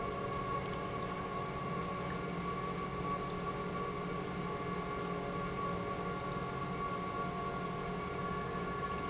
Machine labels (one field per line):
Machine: pump